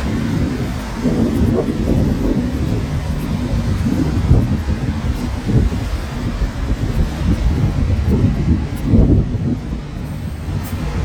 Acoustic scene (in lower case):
street